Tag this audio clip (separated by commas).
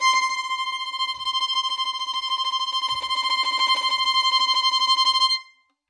Bowed string instrument, Music, Musical instrument